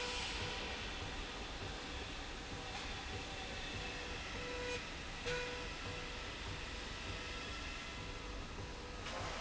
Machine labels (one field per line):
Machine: slide rail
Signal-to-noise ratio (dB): 0 dB